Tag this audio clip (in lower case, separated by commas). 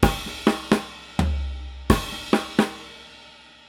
musical instrument, music, percussion, drum kit